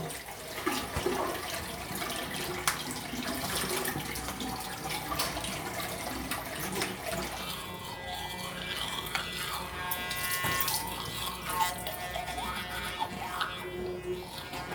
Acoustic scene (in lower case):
restroom